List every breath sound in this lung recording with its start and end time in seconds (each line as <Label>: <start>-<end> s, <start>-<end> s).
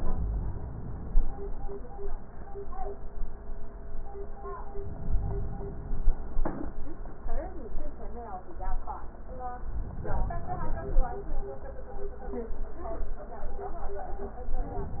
Inhalation: 4.72-6.22 s, 9.81-11.31 s